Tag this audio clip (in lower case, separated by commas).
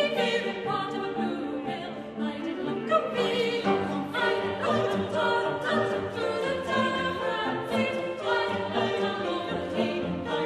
singing, opera, choir, music